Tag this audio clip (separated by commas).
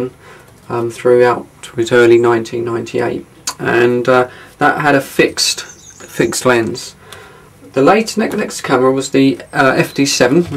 Speech